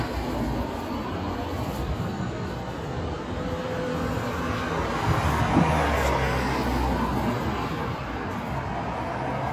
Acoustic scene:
street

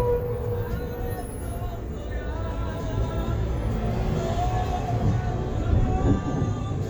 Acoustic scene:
bus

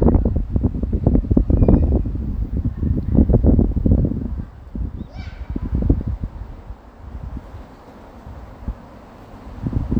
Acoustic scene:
residential area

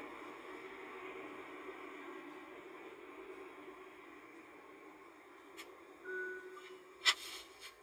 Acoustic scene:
car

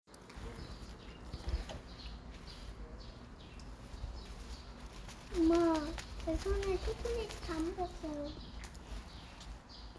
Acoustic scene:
park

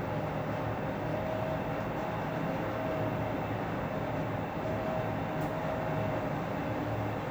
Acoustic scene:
elevator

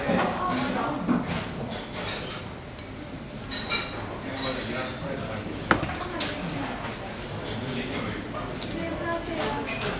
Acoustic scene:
restaurant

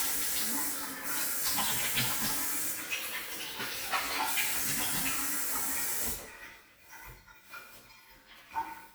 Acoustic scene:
restroom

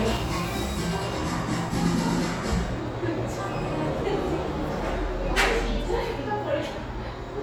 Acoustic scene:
cafe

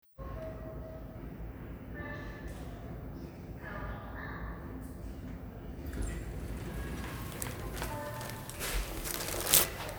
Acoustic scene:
elevator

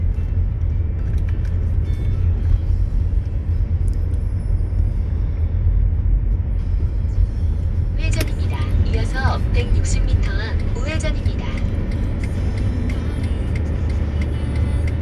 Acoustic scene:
car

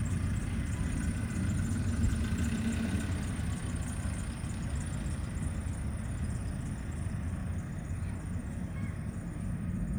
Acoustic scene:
residential area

